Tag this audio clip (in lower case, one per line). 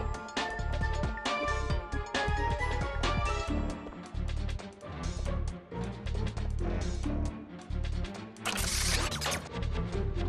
music